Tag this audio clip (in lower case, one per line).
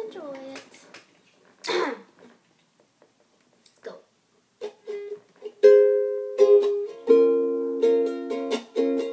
musical instrument
music
speech
inside a small room